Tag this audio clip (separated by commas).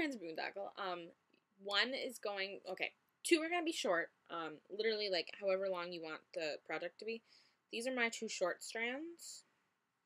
Speech